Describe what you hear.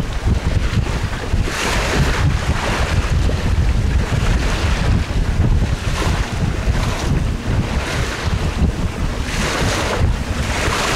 The boat is cruising through the water waves